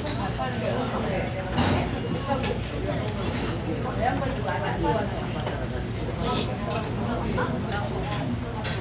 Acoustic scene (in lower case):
restaurant